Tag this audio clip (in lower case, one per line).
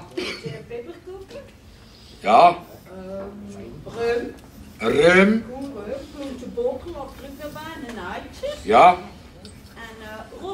speech